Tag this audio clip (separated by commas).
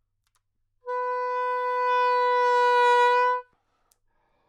Music, Musical instrument, woodwind instrument